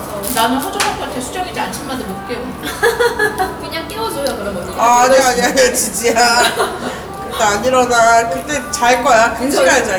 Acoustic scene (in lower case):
cafe